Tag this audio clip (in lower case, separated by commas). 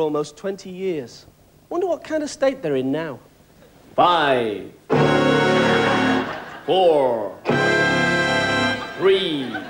music, speech, snicker